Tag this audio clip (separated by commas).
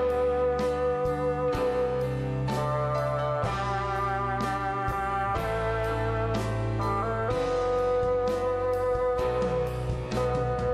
playing bassoon